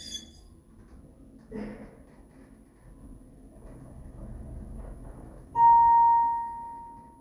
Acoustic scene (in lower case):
elevator